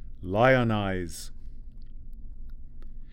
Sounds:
man speaking, speech, human voice

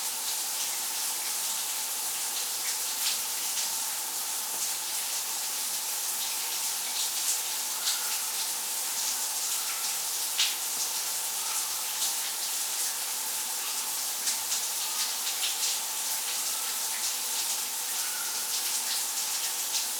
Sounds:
home sounds, bathtub (filling or washing)

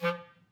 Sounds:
musical instrument, music, woodwind instrument

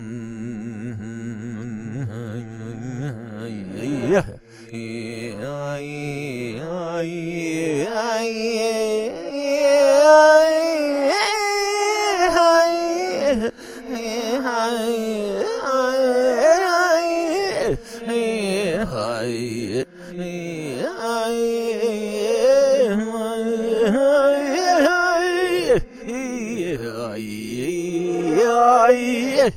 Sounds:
human voice, singing

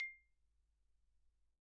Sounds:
percussion, marimba, mallet percussion, musical instrument, music

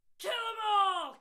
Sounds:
shout, human voice

